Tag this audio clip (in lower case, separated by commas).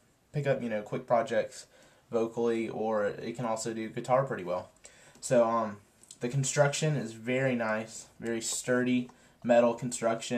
speech